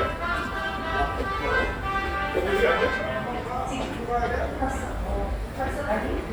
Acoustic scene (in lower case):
subway station